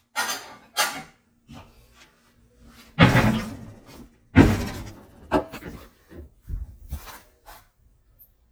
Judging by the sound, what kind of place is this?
kitchen